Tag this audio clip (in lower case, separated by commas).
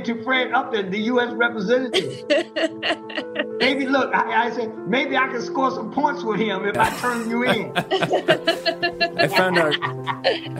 music, speech